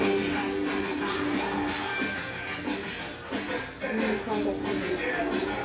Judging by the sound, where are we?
in a restaurant